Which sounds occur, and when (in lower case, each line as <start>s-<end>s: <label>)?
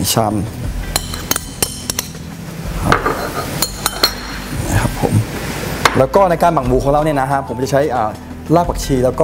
0.0s-0.4s: male speech
0.0s-9.2s: mechanisms
0.0s-9.2s: music
0.8s-2.2s: chink
2.5s-5.9s: frying (food)
2.8s-3.5s: generic impact sounds
3.5s-4.5s: chink
4.5s-5.2s: male speech
5.8s-6.0s: generic impact sounds
5.8s-8.2s: male speech
8.5s-9.2s: male speech